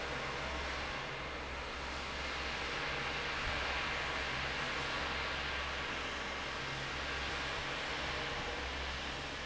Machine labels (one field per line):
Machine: fan